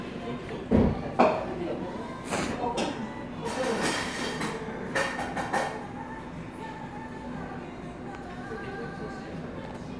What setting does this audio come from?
cafe